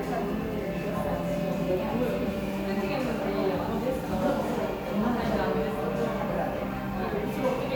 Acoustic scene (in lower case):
crowded indoor space